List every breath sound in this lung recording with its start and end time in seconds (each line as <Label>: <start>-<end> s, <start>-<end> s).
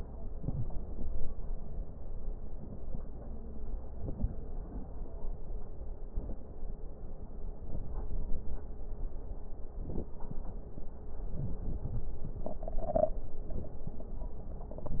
Inhalation: 0.25-0.91 s, 6.02-6.68 s, 9.66-10.32 s
Wheeze: 11.38-11.60 s, 11.82-12.12 s
Crackles: 0.25-0.91 s, 9.66-10.32 s